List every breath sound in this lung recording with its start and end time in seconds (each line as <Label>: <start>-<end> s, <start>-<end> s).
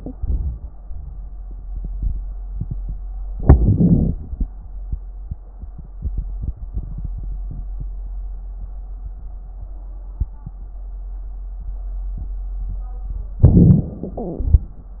Inhalation: 3.33-4.16 s, 13.38-13.95 s
Exhalation: 14.13-14.70 s